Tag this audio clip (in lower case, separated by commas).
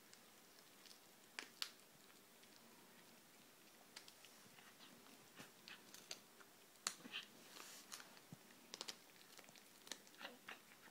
animal